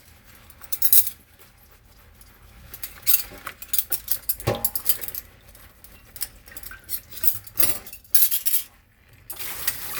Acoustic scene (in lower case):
kitchen